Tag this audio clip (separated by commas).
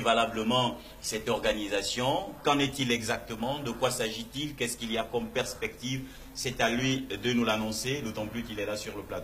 Speech